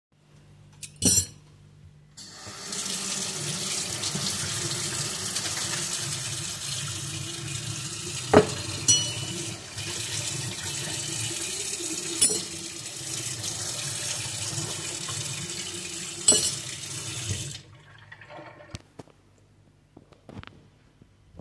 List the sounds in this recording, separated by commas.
cutlery and dishes, running water